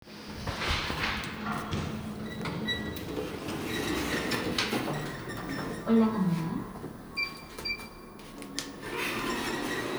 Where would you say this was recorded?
in an elevator